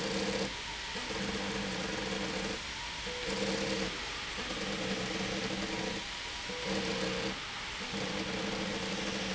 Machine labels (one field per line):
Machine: slide rail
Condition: abnormal